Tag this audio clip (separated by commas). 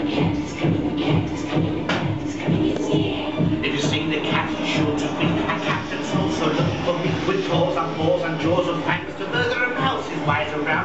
Music